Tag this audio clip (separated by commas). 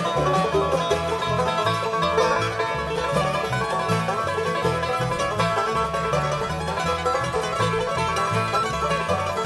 Banjo, Music, Bluegrass, Middle Eastern music